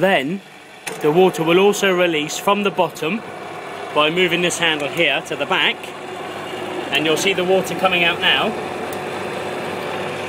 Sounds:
speech
speedboat

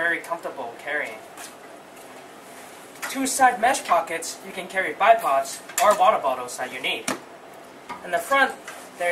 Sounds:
speech

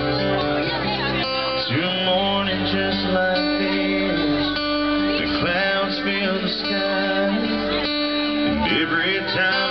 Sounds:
male singing
music

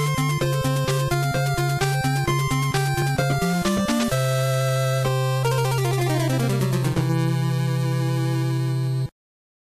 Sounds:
music
soundtrack music

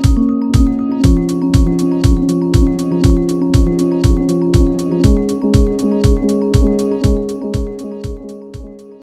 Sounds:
music

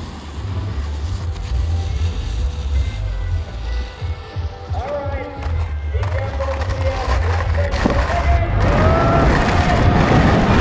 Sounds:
skiing

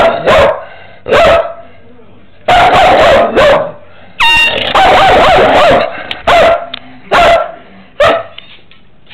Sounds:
bow-wow
yip

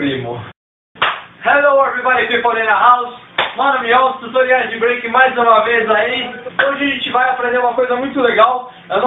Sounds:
speech

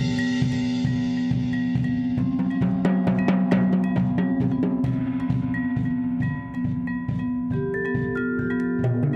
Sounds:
percussion
musical instrument
music
drum
drum kit
cymbal

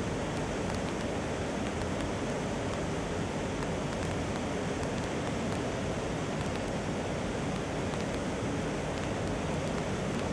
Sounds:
outside, rural or natural

